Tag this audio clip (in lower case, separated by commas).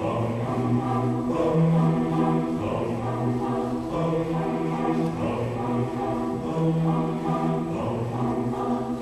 choir, music